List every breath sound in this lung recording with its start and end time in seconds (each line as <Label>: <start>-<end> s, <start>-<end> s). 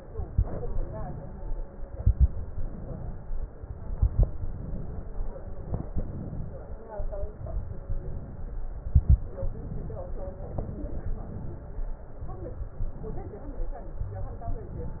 Inhalation: 0.78-1.54 s, 2.53-3.42 s, 4.39-5.09 s, 6.04-6.80 s, 7.81-8.61 s, 9.46-10.21 s, 11.13-11.97 s, 12.77-13.57 s, 14.60-15.00 s
Exhalation: 0.00-0.70 s, 1.77-2.47 s, 3.59-4.29 s, 5.21-5.96 s, 6.99-7.79 s, 8.68-9.44 s, 10.22-11.06 s, 12.01-12.77 s, 13.72-14.60 s
Crackles: 0.00-0.70 s, 1.77-2.47 s, 3.59-4.29 s, 5.21-5.96 s, 8.68-9.44 s, 13.72-14.60 s